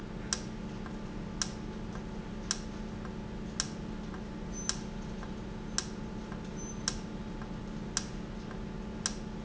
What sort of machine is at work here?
valve